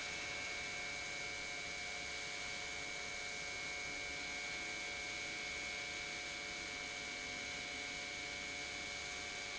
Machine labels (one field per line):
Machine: pump